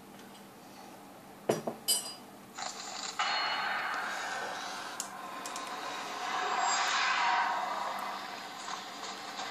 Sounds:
dishes, pots and pans

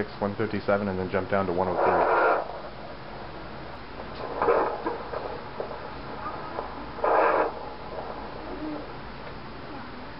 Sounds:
Speech

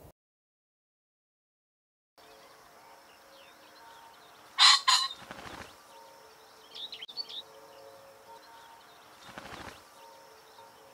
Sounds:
pheasant crowing

